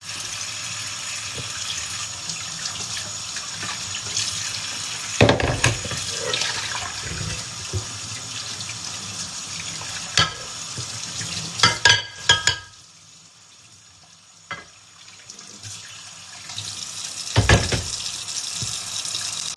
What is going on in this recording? I am washing my dishes why the water is running, you can hear also dishes scrape each other